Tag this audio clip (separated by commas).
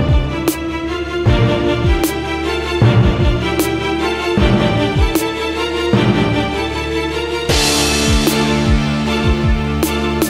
Orchestra, Music